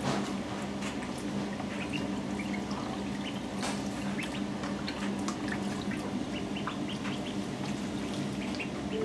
Birds are splashing and chirping in water